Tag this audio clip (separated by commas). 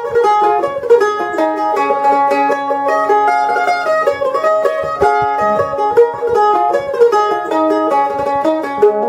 Mandolin, playing banjo, Music, Banjo